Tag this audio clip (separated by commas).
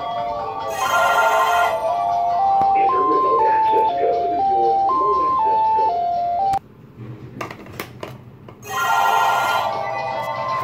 telephone bell ringing